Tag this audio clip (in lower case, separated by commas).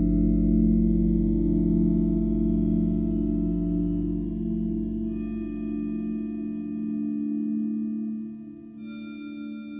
music